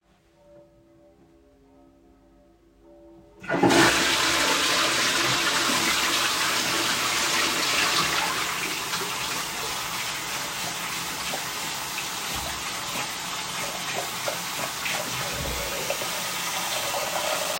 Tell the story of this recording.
While church bells were ringing I flushed the toilet. While still flushing I turned on the sink faucet and washed my hands.